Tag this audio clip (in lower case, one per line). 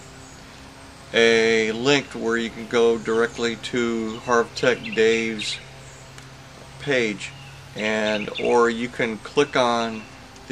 speech